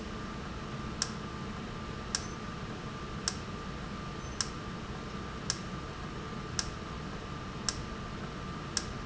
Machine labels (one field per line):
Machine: valve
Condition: normal